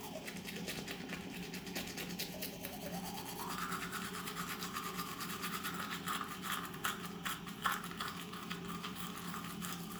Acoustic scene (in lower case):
restroom